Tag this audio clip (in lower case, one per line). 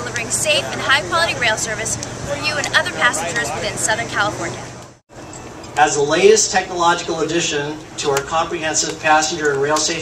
outside, urban or man-made
speech